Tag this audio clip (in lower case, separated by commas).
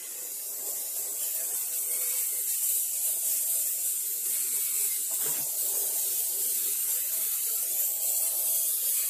inside a small room, electric toothbrush